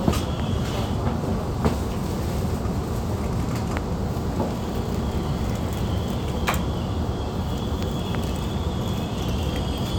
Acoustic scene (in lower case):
subway train